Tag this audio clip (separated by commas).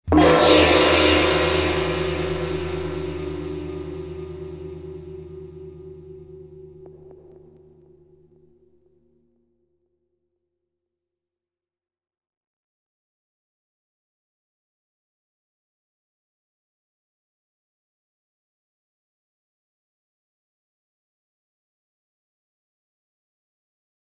Music, Percussion, Musical instrument, Gong